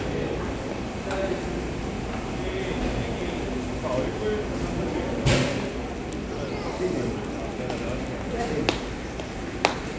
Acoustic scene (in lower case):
crowded indoor space